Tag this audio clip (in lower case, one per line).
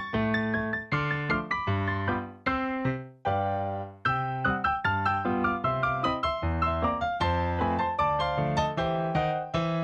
music